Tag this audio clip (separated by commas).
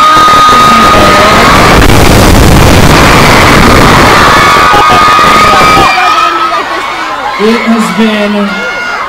Speech, inside a public space